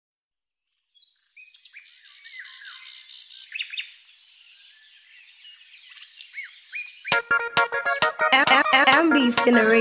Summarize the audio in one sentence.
Birds are chirping, music begins to play, and a young female speaks